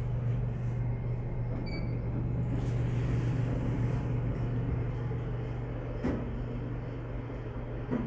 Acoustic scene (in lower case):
elevator